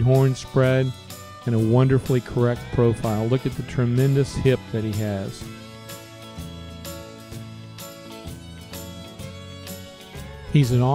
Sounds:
Music, Speech

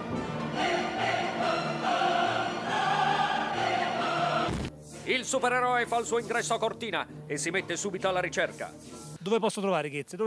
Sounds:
Speech, Music

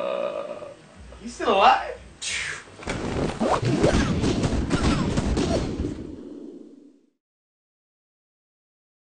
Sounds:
Silence, inside a small room, Speech

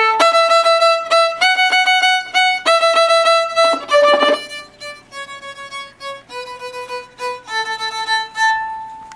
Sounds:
Musical instrument, Music, Violin

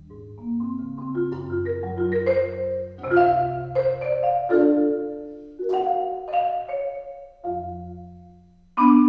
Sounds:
xylophone, Music, Marimba

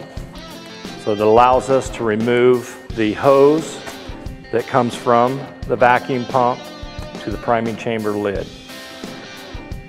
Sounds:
Speech, Music

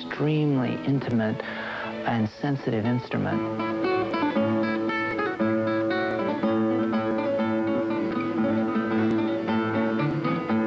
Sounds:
Speech, Guitar, Music, Musical instrument, Plucked string instrument, Strum

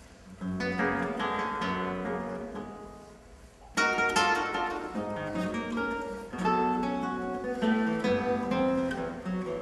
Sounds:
Plucked string instrument, Music, Guitar, Musical instrument

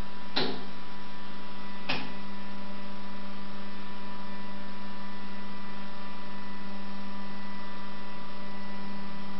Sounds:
Door

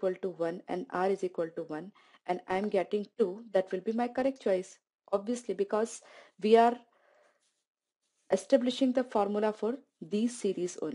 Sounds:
Speech

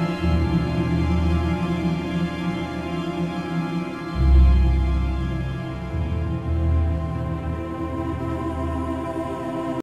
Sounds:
Music, Soundtrack music, Scary music, Background music

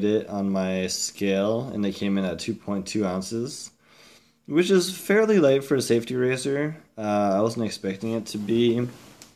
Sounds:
Speech

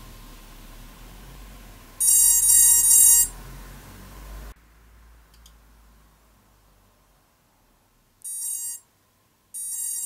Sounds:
inside a small room, Silence

